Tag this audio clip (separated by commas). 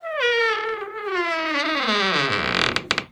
home sounds, Squeak, Door